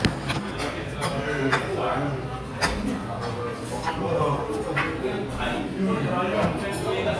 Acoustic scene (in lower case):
restaurant